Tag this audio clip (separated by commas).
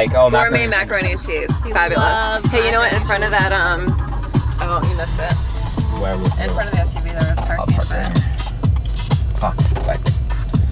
Speech, Music, Disco